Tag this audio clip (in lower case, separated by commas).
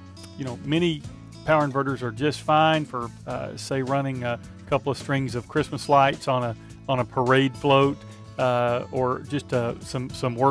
speech, music